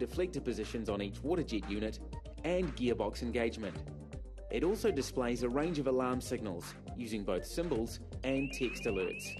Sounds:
speech
music

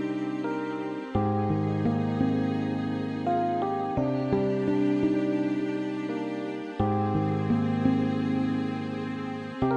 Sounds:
music
sad music

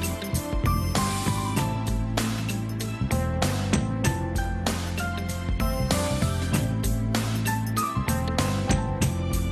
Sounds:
music

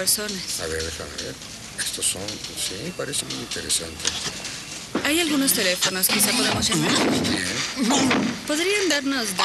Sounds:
speech

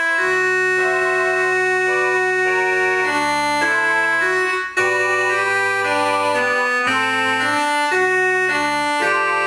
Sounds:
electronic organ
organ
hammond organ

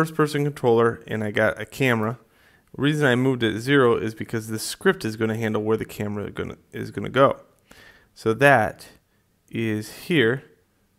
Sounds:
speech

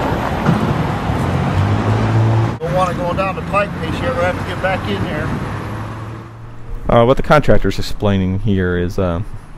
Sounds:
speech
roadway noise
vehicle

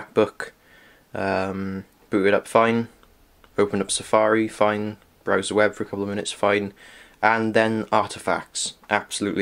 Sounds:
speech

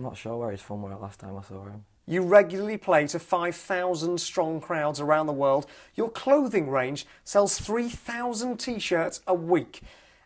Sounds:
speech

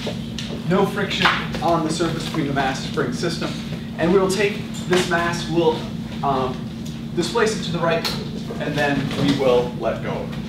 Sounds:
speech

